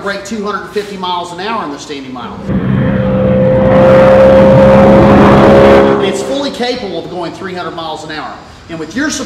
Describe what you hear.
A man talking and a car passing by loudly